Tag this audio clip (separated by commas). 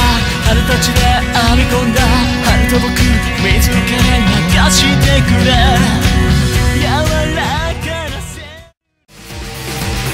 Independent music, Music